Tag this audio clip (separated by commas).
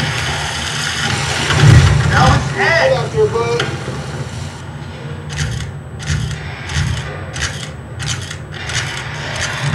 Speech